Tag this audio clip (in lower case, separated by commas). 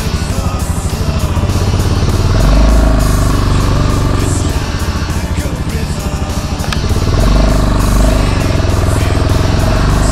vehicle, motorcycle, music